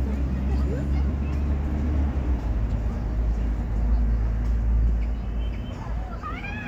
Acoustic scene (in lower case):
park